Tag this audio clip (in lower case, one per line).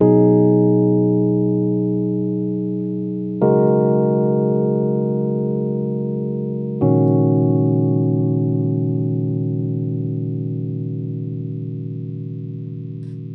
keyboard (musical)
music
musical instrument
piano